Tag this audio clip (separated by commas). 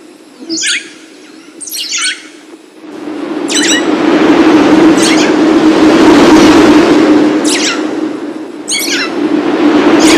Chirp